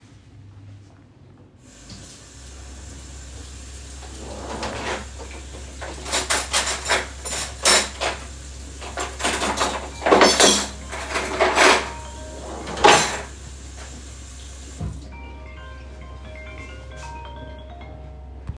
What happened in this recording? I was doing the dishes - the water was running and I was putting away the cuttlery into the drawer when the phone suddenly started ringing.